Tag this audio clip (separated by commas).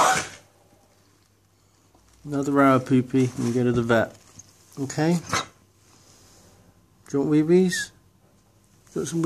Speech, Dog, Domestic animals, Animal